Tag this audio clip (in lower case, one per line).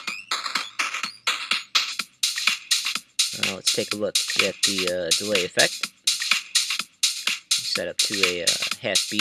music
speech